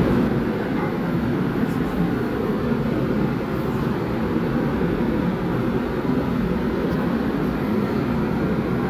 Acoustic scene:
subway train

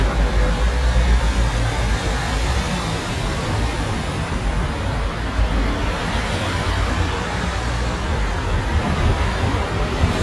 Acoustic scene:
street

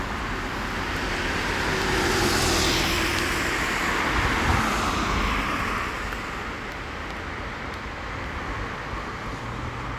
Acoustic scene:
street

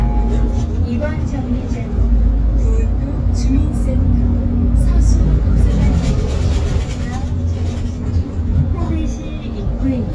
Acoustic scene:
bus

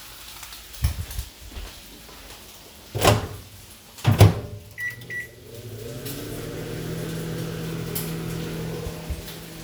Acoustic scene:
kitchen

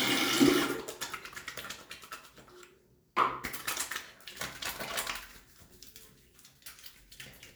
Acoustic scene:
restroom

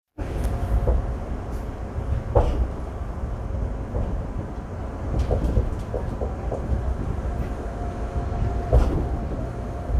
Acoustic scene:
subway train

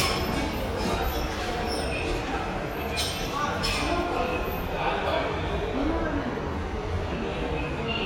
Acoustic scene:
subway station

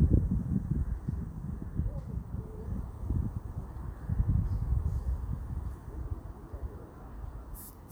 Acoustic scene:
park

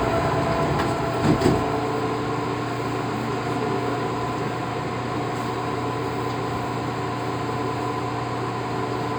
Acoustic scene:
subway train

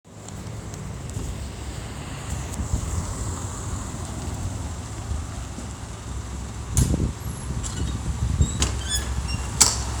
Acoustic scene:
street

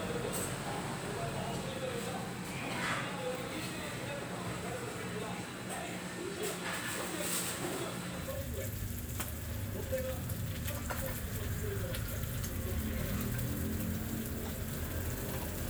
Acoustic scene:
restaurant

